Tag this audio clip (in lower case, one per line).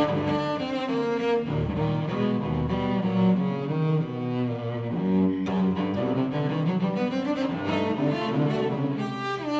double bass
musical instrument
bowed string instrument
playing cello
music
cello